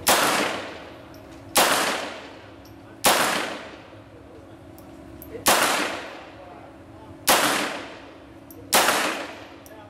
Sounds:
Clang

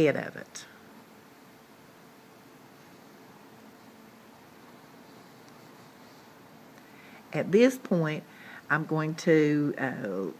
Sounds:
Speech

